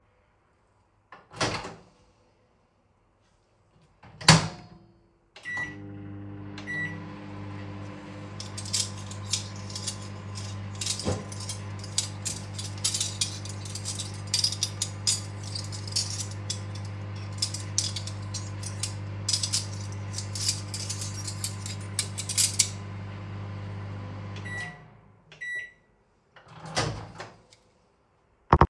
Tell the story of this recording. I opened the microwave door and placed my food inside. I pressed the start button which made a beep, and the microwave started humming. While it was humming, I loudly sorted through the cutlery and dishes on the counter.